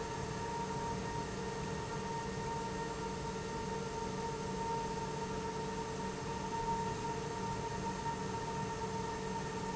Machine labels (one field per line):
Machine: pump